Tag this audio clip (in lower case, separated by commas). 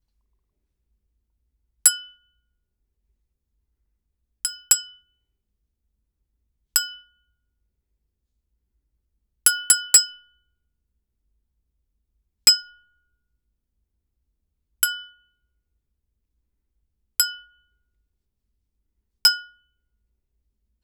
glass, clink